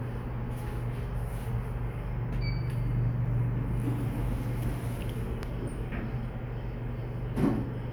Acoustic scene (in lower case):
elevator